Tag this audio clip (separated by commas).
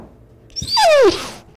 Domestic animals, Dog, Animal